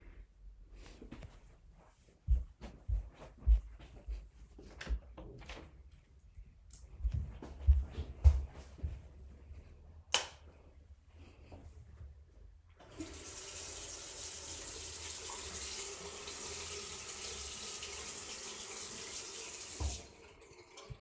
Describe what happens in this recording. I walked from my room to the door, opened the door and walked to the bathroom, where I turned on the light and washed my hands.